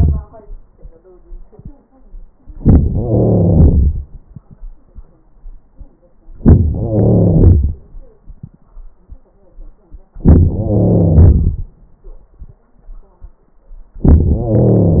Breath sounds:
Inhalation: 2.51-2.90 s, 6.32-6.78 s, 10.16-10.53 s, 14.04-14.41 s
Exhalation: 2.90-4.45 s, 6.79-8.24 s, 10.52-12.34 s, 14.40-15.00 s
Crackles: 2.51-2.90 s, 2.90-4.07 s, 6.32-6.78 s, 6.79-7.76 s, 10.11-10.46 s, 10.52-11.57 s, 13.92-14.38 s, 14.40-15.00 s

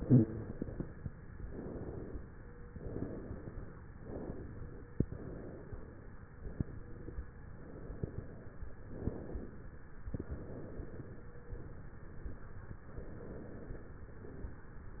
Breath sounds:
Inhalation: 1.34-2.29 s, 3.94-4.90 s, 6.39-7.44 s, 8.79-9.73 s, 12.87-14.09 s
Exhalation: 0.08-1.19 s, 2.71-3.86 s, 4.99-6.19 s, 7.54-8.74 s, 10.03-12.81 s, 14.20-15.00 s

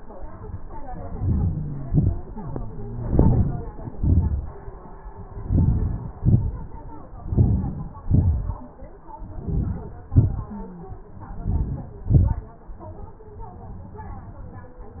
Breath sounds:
Inhalation: 1.23-1.72 s, 3.08-3.62 s, 5.45-5.95 s, 7.39-7.94 s, 9.45-10.02 s, 11.54-12.00 s
Exhalation: 1.94-2.23 s, 3.89-4.40 s, 6.18-6.64 s, 8.13-8.52 s, 10.23-10.62 s, 12.12-12.44 s

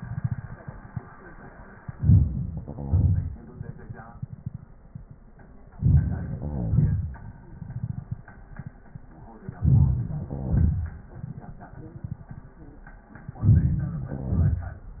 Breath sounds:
Inhalation: 1.93-2.65 s, 5.78-6.39 s, 9.61-10.30 s, 13.40-14.15 s
Exhalation: 2.65-3.45 s, 6.39-8.26 s, 10.29-11.15 s, 14.14-15.00 s
Crackles: 2.65-3.45 s, 5.79-7.11 s, 10.27-10.71 s, 14.09-14.64 s

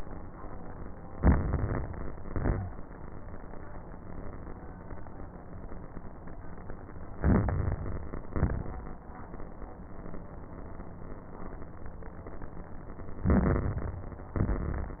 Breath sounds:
Inhalation: 1.06-2.16 s, 7.18-8.28 s, 13.24-14.35 s
Exhalation: 2.17-2.80 s, 8.32-8.96 s, 14.37-15.00 s
Crackles: 1.06-2.16 s, 2.17-2.80 s, 7.18-8.28 s, 8.32-8.96 s, 13.24-14.35 s, 14.37-15.00 s

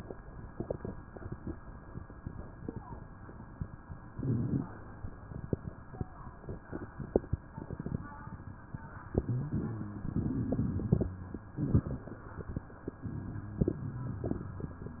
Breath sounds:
Inhalation: 9.01-10.15 s, 11.50-13.03 s
Exhalation: 10.17-11.50 s, 13.04-14.69 s
Crackles: 9.01-10.15 s, 11.48-13.01 s, 13.04-14.69 s

